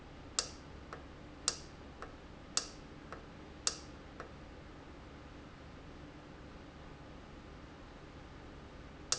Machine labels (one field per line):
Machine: valve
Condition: normal